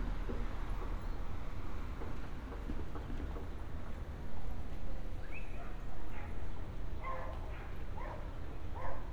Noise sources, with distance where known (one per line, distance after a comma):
dog barking or whining, far